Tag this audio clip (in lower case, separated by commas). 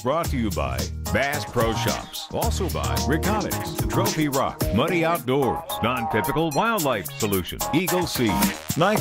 music, speech